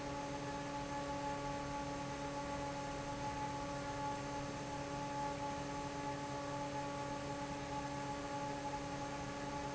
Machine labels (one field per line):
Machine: fan